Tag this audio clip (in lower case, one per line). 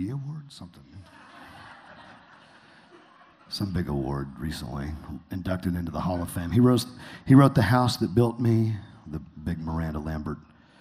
speech